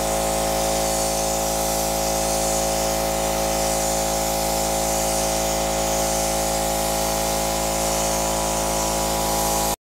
Mechanical humming and vibrating with powerful spraying